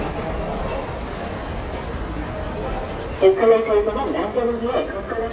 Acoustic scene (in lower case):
subway station